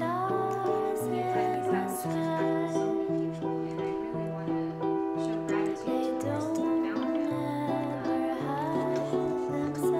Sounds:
music

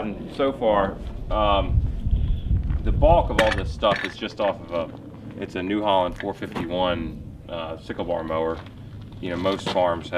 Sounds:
speech

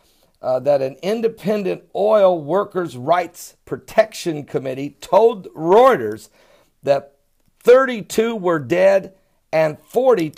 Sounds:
speech

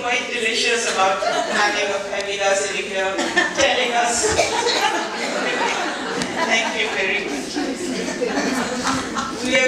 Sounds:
speech

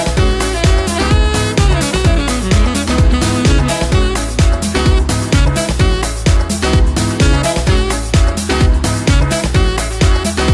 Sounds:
disco
music

